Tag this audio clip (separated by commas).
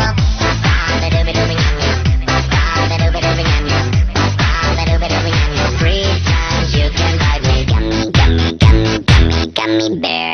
Music